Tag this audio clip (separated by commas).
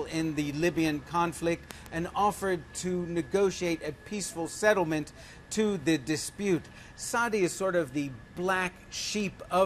Speech